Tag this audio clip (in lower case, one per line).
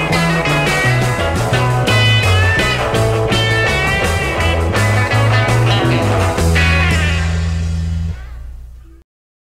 music